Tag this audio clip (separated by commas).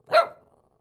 Bark, Dog, pets, Animal